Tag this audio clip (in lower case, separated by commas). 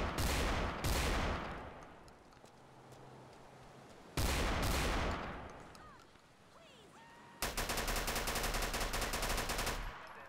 speech